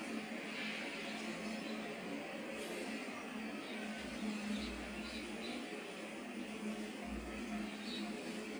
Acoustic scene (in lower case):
park